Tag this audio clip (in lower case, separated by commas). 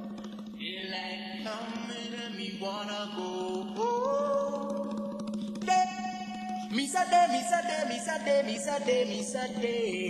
music